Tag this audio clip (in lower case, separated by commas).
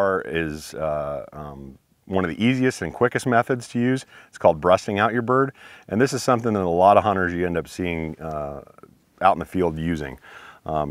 speech